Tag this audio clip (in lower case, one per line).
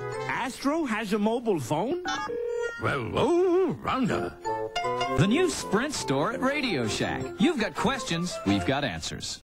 music
speech